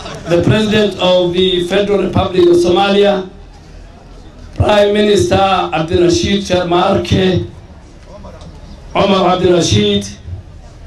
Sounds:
narration
speech
male speech

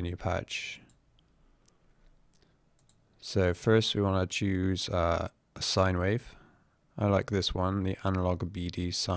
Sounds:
speech

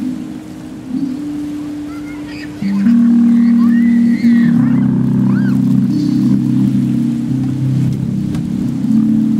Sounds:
music
steel guitar
ocean
guitar

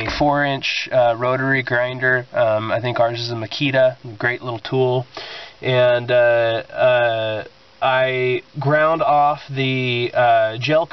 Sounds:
speech

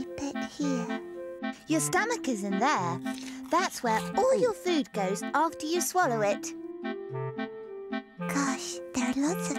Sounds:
speech
music
kid speaking

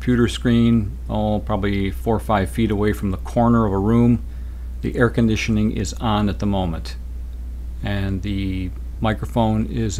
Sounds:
speech

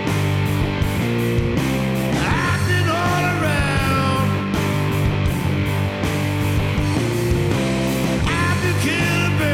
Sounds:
music

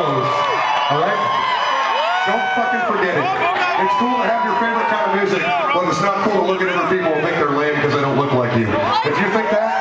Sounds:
speech

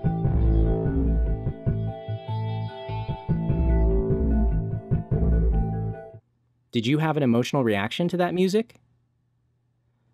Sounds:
music
speech

